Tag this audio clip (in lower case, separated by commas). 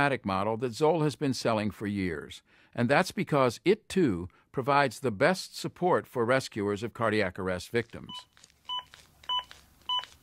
speech, inside a small room, bleep